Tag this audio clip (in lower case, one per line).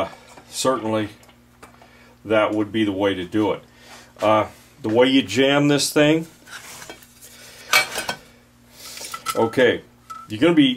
speech
inside a small room